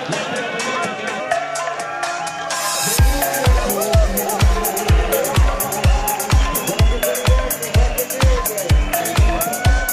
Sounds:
speech, music, outside, urban or man-made

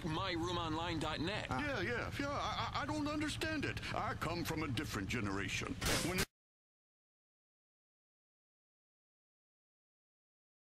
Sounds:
speech, vehicle

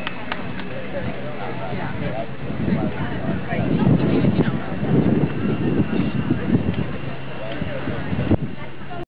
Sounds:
clip-clop, horse, speech, animal

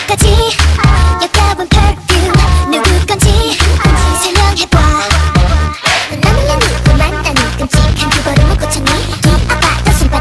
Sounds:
music

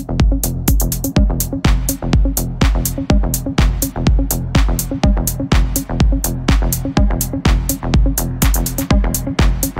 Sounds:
music, techno, electronic music

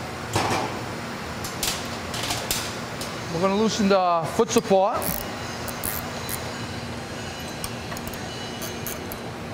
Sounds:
speech, tools

